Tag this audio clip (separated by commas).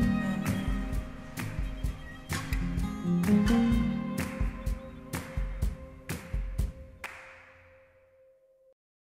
Music